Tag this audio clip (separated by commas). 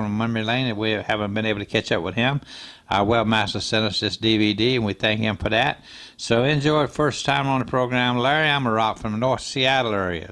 Speech